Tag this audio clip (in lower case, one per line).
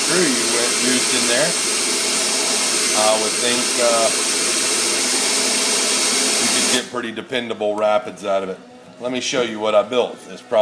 speech